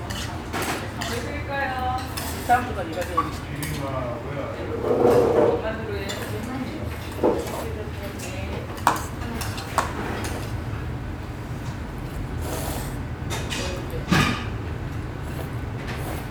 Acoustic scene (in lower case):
restaurant